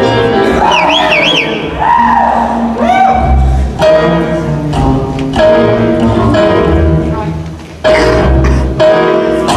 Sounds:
music

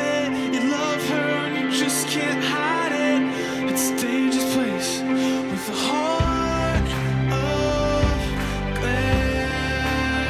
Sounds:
music

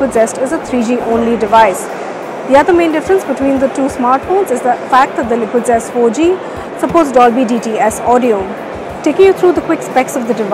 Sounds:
speech

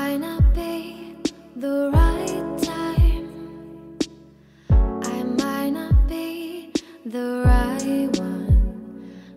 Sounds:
music

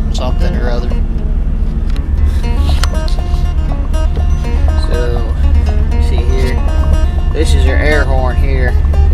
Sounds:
music
speech

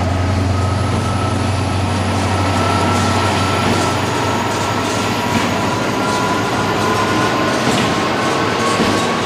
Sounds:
vehicle
revving

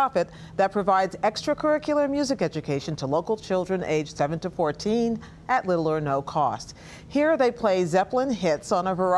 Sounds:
speech

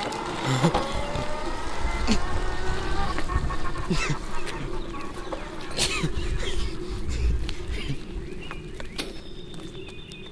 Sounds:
outside, rural or natural
vehicle

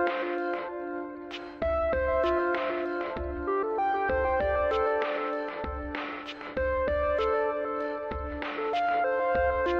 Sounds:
music

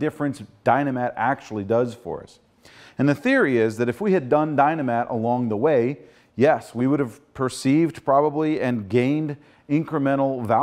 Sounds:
speech

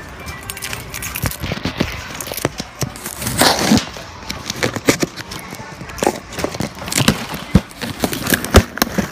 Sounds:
crackle

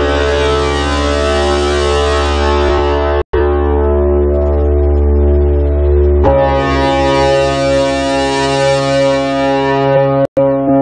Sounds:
music

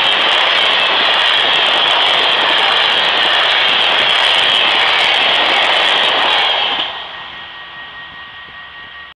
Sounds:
vehicle

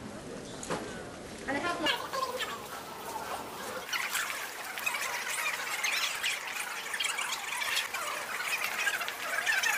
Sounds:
speech

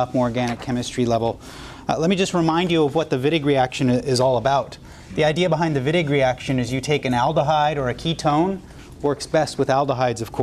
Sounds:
speech

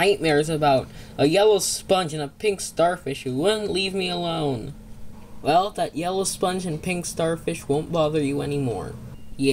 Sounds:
speech

